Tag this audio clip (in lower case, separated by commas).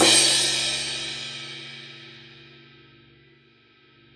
cymbal, music, musical instrument, crash cymbal, percussion